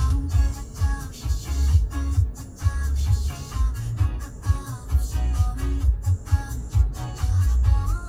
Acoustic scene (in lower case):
car